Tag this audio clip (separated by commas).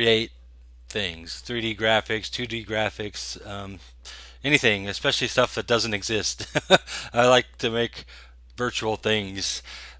Speech